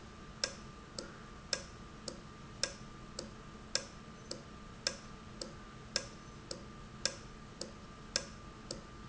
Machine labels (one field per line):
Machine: valve